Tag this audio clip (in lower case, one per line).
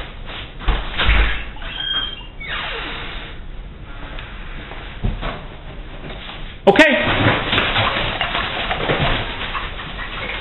speech